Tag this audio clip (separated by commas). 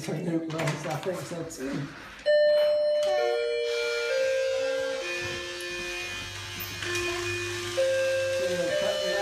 electric razor